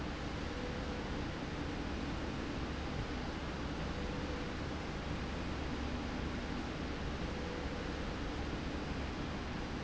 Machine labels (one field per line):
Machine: slide rail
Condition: normal